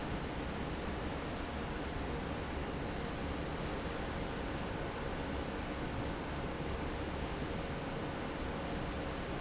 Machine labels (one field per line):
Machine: fan